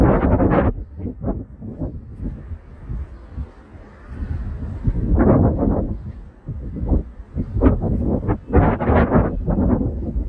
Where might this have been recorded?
in a residential area